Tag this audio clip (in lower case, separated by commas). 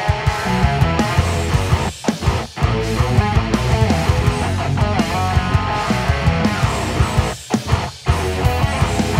electric guitar, plucked string instrument, bass guitar, strum, music, musical instrument, guitar